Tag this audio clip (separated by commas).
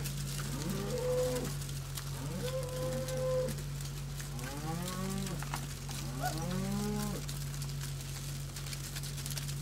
Animal